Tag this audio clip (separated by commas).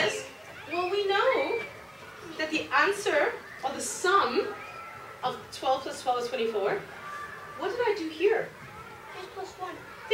Child speech